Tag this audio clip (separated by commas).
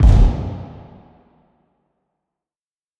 Explosion, Fireworks